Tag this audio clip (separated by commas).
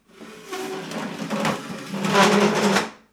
Squeak